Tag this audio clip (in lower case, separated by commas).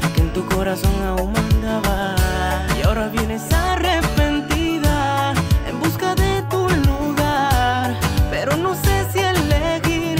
music, funk